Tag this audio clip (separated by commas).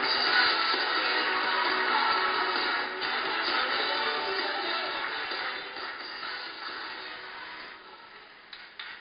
Rock and roll, Music